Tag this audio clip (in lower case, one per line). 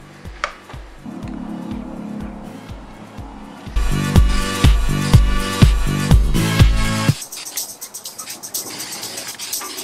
music